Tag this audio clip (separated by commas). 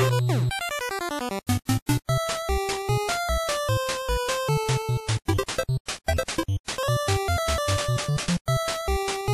Music, Funny music